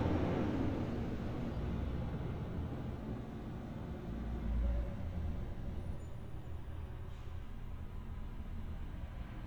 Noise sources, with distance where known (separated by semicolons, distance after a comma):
engine of unclear size